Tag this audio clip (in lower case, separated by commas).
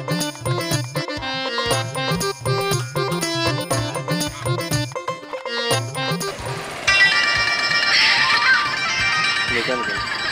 speech, music, funny music